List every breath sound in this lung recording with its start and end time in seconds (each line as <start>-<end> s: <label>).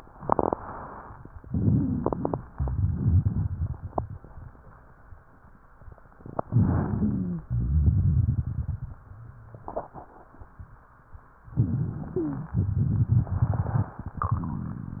1.46-2.44 s: wheeze
1.48-2.42 s: inhalation
2.52-4.20 s: exhalation
2.52-4.20 s: crackles
6.44-7.44 s: inhalation
6.82-7.44 s: wheeze
7.46-8.90 s: exhalation
7.46-8.90 s: crackles
11.54-12.50 s: inhalation
12.10-12.50 s: wheeze
12.54-14.00 s: exhalation
12.54-14.00 s: crackles